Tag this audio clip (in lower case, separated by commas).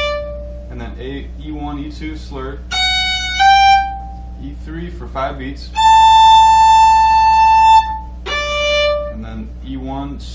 musical instrument, music, speech, fiddle